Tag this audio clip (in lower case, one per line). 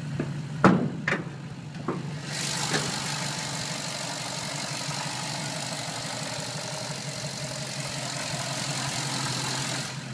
vehicle